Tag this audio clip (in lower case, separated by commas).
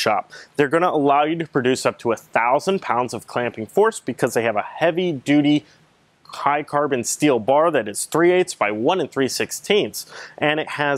speech